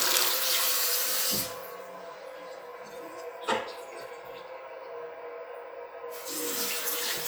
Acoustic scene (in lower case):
restroom